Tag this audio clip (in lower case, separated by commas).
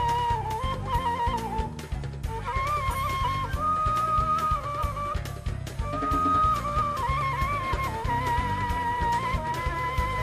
music, wind instrument, musical instrument, flute